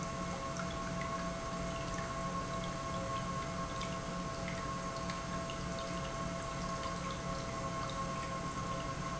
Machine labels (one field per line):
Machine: pump